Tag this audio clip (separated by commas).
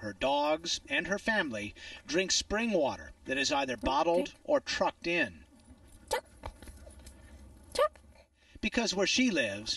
Speech